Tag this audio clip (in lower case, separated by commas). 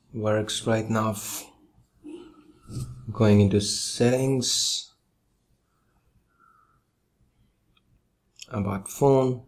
speech